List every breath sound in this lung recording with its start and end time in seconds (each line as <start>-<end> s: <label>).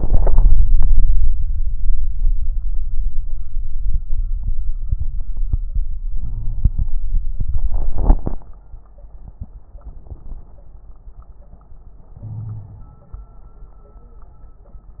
6.13-7.01 s: inhalation
6.21-6.72 s: wheeze
12.15-13.13 s: inhalation
12.22-12.93 s: wheeze